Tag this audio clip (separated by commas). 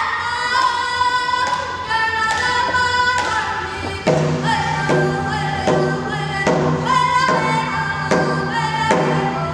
Music, Singing